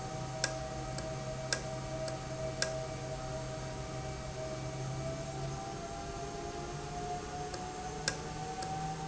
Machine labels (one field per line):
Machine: valve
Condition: normal